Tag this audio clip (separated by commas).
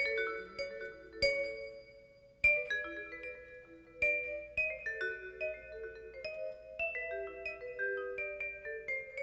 playing vibraphone